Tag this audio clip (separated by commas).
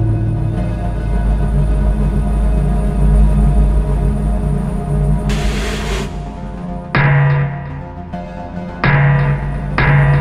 Electronic music, Music, Techno